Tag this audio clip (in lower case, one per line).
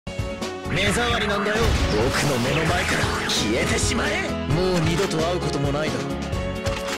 speech
music